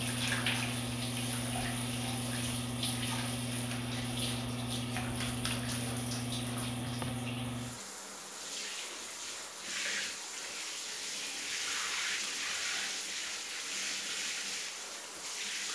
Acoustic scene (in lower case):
restroom